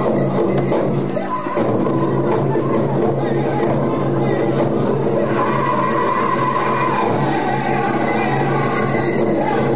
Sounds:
Music

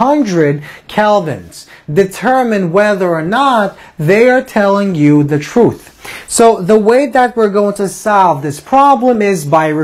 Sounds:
Speech

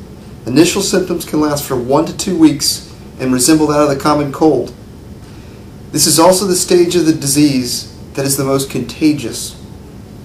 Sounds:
Speech

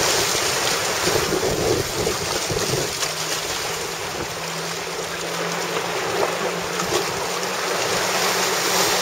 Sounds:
stream burbling, Stream

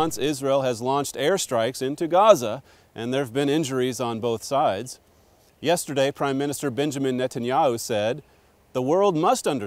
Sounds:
Speech

